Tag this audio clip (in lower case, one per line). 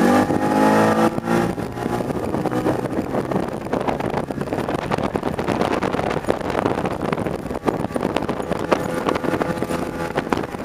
speedboat
wind
wind noise (microphone)
water vehicle